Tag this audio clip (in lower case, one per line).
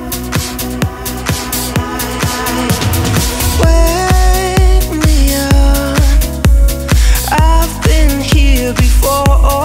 music